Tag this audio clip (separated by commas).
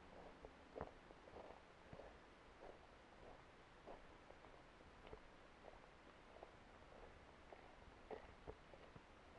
footsteps